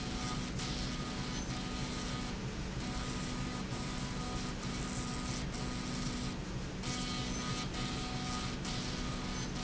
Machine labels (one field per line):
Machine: slide rail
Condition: abnormal